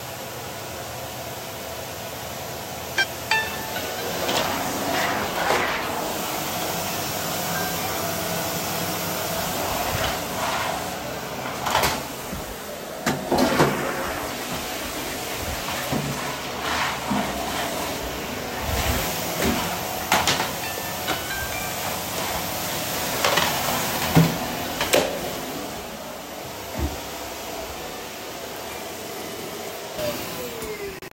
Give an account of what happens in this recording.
I was hovering along the bathroom and hallway when my phone rang and the toilet was flushed